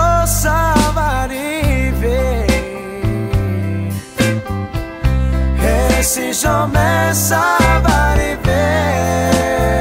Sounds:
Music

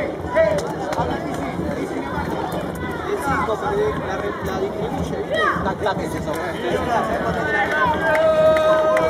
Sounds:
Speech

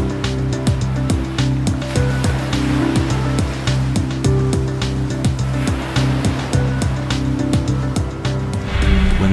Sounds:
Ocean, surf

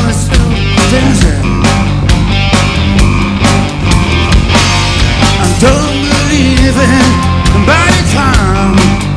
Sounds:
Music

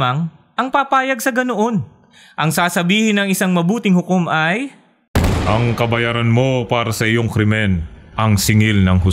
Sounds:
Speech

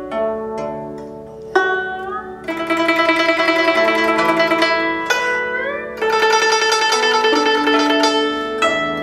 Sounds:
Music

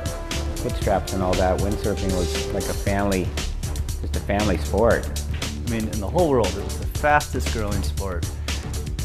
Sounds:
Speech, Music

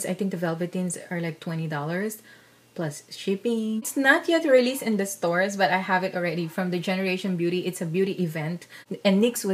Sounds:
Speech

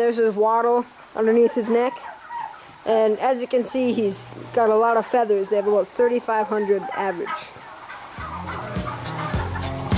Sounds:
Gobble, Turkey, Fowl

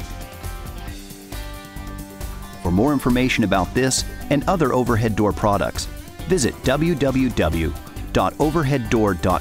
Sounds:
Music, Speech

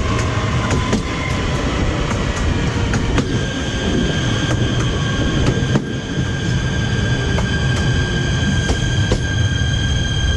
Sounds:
train wheels squealing

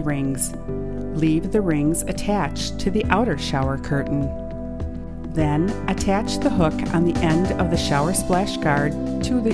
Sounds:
Music, Speech

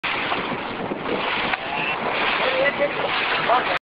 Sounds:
Speech

